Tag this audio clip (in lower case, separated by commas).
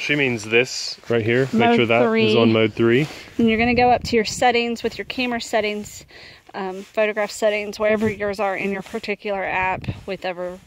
speech